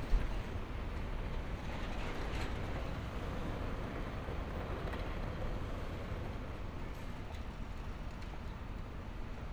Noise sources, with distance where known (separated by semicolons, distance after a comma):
non-machinery impact